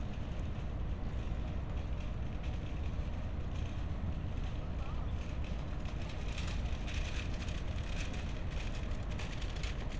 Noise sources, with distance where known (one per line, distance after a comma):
non-machinery impact, near